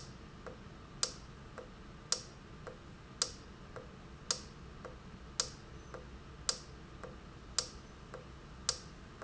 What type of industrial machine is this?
valve